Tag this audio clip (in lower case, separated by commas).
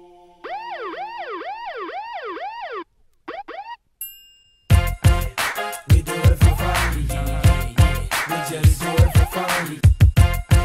emergency vehicle, ambulance (siren), siren